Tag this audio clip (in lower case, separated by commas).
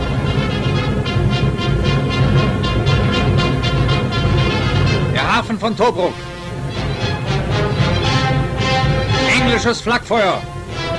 music, speech